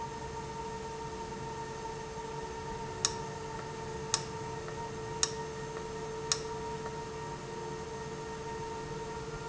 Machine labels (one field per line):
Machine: valve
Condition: abnormal